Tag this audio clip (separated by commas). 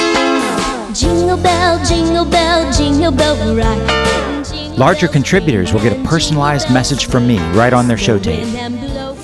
Music, Speech